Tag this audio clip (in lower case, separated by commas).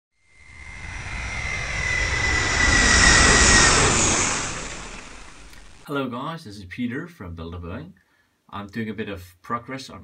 speech, inside a small room